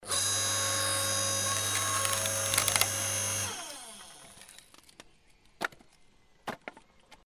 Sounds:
Mechanisms

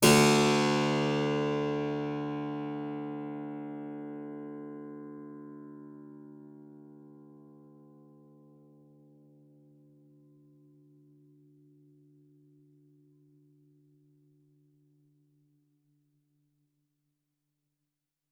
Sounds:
Keyboard (musical), Musical instrument, Music

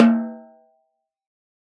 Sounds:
Snare drum, Percussion, Musical instrument, Drum, Music

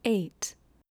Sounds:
Speech, Human voice, woman speaking

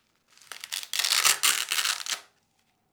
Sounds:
home sounds

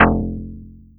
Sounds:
Plucked string instrument, Musical instrument, Music, Guitar

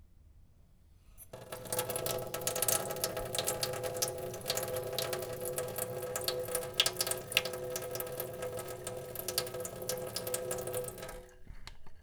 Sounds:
Domestic sounds, Sink (filling or washing)

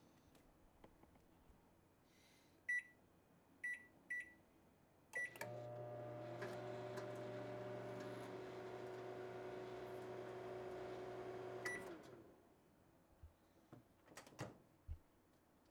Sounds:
Microwave oven, Domestic sounds

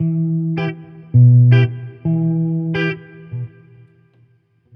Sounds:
Guitar, Music, Plucked string instrument, Electric guitar, Musical instrument

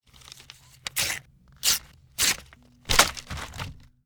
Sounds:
Tearing

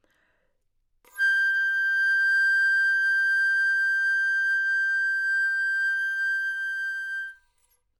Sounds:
Musical instrument, Music, Wind instrument

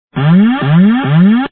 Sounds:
Alarm

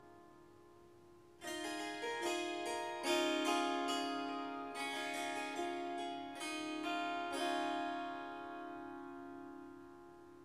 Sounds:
Music, Musical instrument, Harp

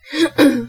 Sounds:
Respiratory sounds, Cough

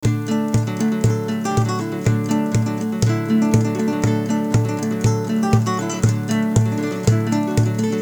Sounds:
Musical instrument, Guitar, Plucked string instrument, Music, Acoustic guitar

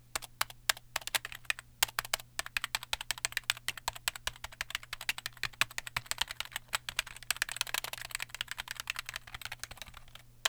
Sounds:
Domestic sounds, Typing

